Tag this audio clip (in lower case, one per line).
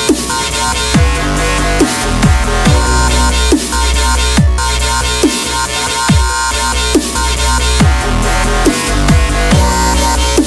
dubstep
music